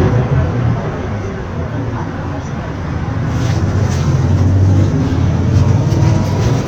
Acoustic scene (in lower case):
bus